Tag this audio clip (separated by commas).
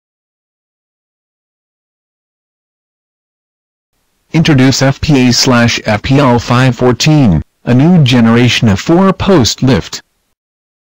Speech